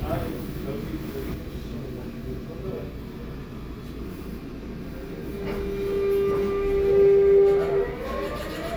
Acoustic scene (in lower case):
subway train